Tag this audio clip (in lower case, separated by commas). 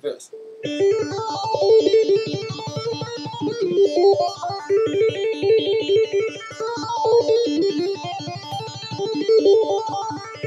tapping (guitar technique), music, strum, plucked string instrument, electric guitar, musical instrument, speech